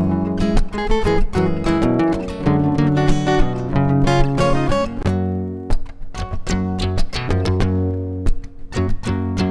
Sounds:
Music

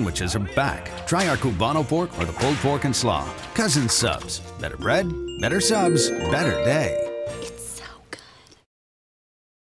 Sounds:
Speech, Music

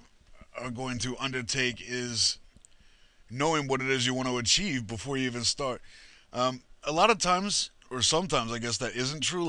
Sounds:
Speech

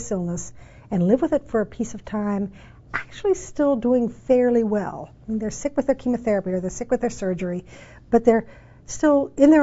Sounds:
Female speech, Speech

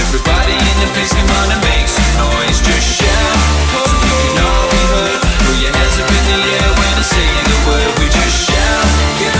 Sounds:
Music

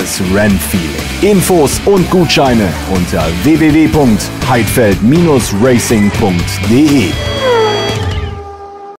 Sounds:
Music, Speech

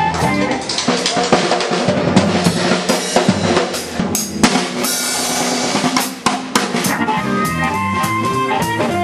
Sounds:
Music, Rimshot

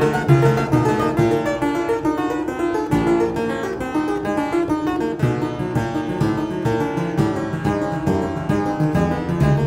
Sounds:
playing harpsichord

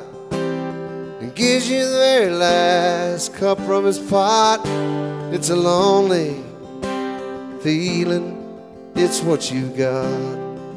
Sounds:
Music

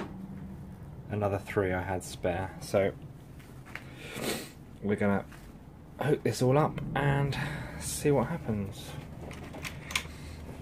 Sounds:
Speech

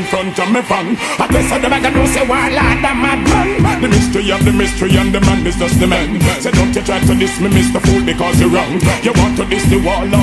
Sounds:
Reggae, Music

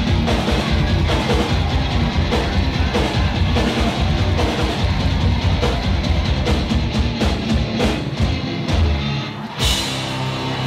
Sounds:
Music, Musical instrument

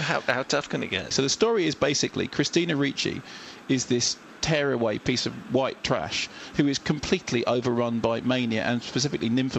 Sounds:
Speech

